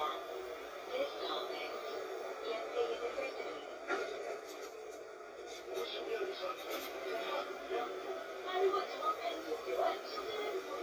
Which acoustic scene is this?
bus